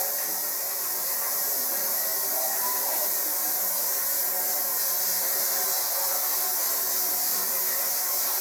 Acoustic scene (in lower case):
restroom